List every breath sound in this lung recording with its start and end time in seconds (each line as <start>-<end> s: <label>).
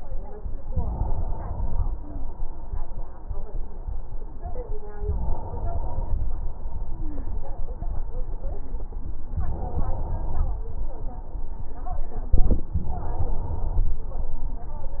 0.61-1.88 s: inhalation
5.01-6.24 s: inhalation
6.86-7.29 s: stridor
9.40-10.63 s: inhalation
12.77-13.99 s: inhalation